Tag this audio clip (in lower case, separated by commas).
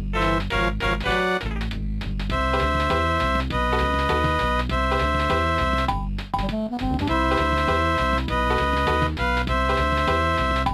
music